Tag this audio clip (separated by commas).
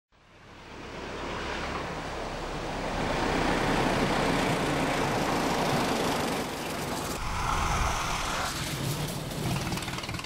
Vehicle, Car